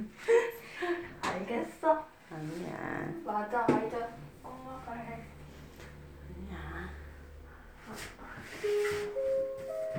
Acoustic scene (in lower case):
elevator